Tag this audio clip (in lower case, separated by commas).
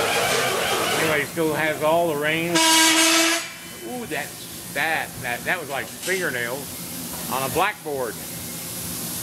speech, inside a small room